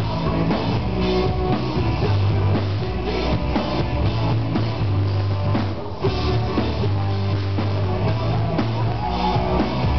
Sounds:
Music

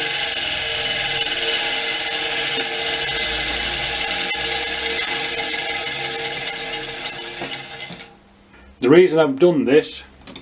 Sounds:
electric grinder grinding

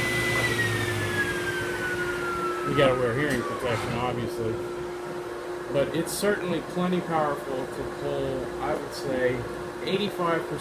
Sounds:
Speech

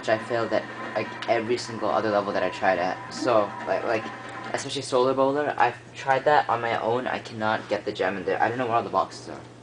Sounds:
Speech

